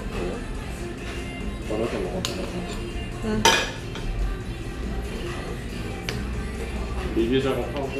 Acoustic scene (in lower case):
restaurant